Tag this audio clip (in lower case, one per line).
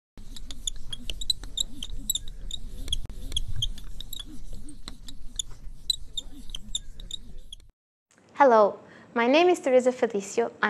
speech
inside a small room